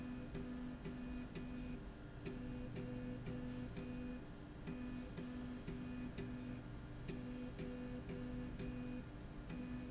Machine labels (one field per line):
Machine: slide rail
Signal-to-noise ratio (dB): 6 dB